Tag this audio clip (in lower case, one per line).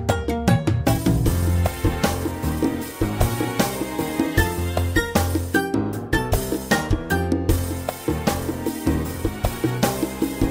music